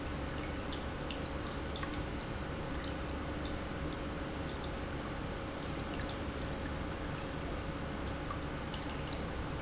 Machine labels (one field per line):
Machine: pump